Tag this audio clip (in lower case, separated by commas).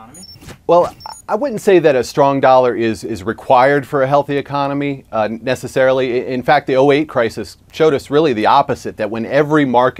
speech